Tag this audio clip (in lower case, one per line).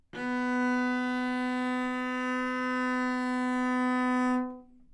bowed string instrument
musical instrument
music